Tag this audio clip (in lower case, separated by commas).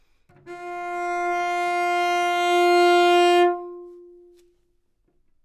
music, bowed string instrument, musical instrument